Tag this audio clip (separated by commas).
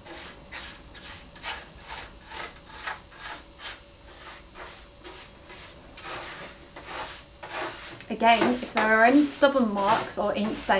Speech, inside a small room